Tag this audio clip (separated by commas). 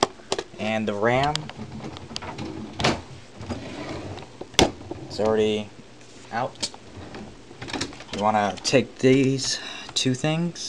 Speech